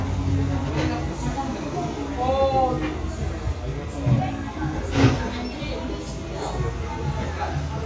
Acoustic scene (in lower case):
cafe